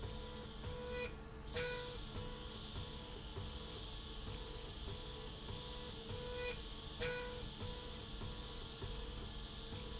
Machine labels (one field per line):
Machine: slide rail